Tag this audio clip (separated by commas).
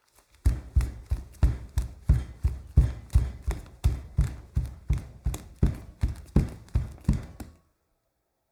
Run